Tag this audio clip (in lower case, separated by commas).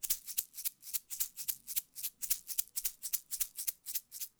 rattle (instrument), music, percussion, musical instrument